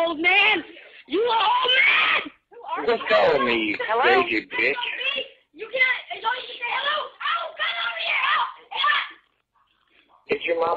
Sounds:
Speech, Screaming, people screaming

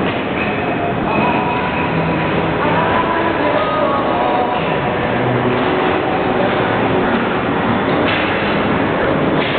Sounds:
Music

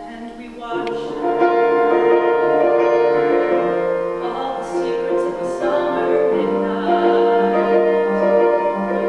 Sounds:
Female singing, Music

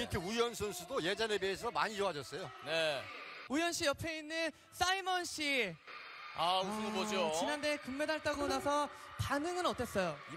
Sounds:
Speech

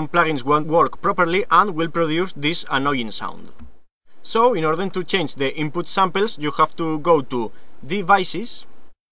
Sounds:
Speech

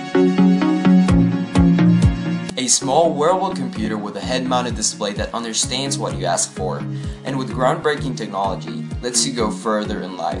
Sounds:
Music, Speech

